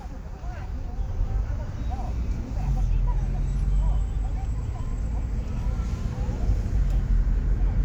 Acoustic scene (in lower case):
car